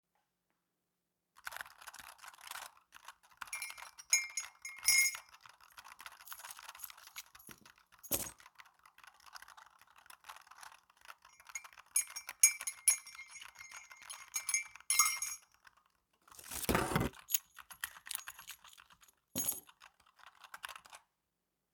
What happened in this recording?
I sat at my desk and began typing on my keyboard. While I was actively typing, I was stirring my tea, and at the same time, fidgeting with my keychain. All three sounds overlapped clearly for several seconds.